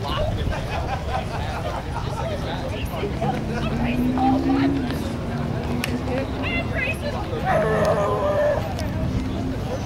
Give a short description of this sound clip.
People are talking and laughing as a car passes by and a dog barks